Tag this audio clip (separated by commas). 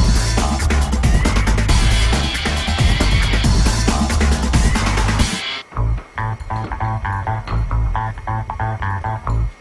Music